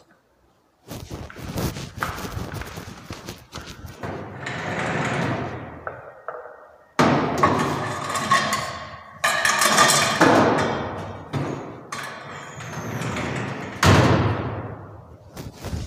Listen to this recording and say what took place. I apporached a kitchen cabinet, opened it, put cookware inside and closed it.